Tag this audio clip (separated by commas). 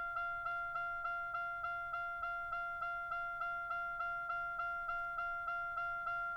Motor vehicle (road), Car, Vehicle